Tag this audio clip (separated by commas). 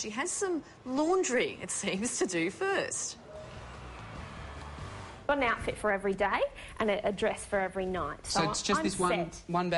Speech, Music